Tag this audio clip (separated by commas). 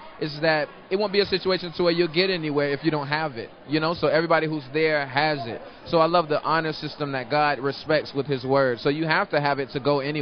Speech